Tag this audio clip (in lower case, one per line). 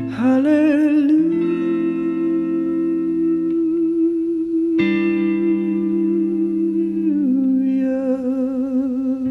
music